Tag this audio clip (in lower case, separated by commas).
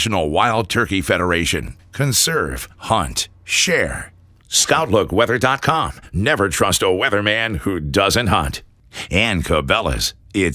speech